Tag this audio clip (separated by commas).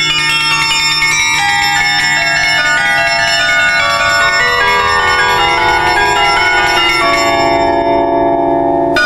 wind chime